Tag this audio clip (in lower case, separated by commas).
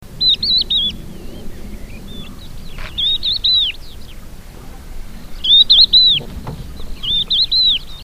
bird, wild animals, animal